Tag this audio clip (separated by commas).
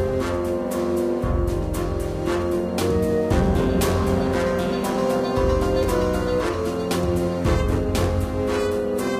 Video game music, Music